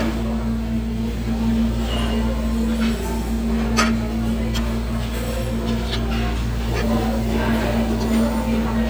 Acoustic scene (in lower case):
restaurant